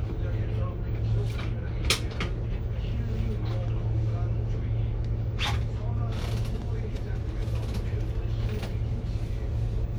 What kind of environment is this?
bus